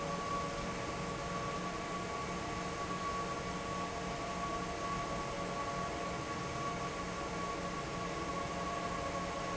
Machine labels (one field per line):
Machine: fan